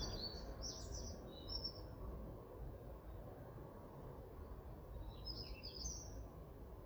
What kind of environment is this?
park